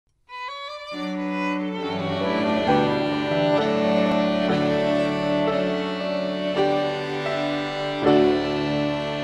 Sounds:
Violin, Music

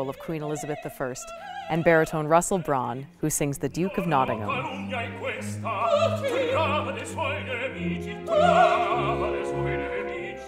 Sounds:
Speech, Music, Opera

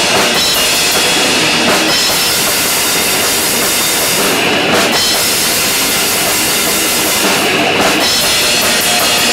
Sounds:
Music

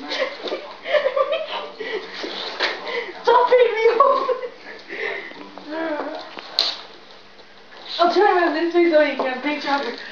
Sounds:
Speech

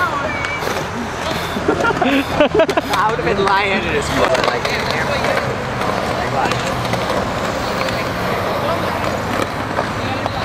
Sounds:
Speech, Skateboard

